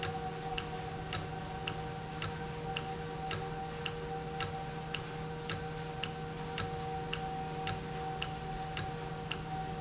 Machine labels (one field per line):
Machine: valve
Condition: normal